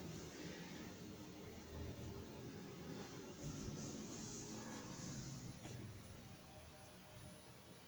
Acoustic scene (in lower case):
elevator